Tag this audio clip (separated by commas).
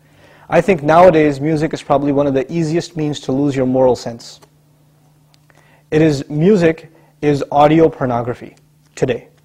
Speech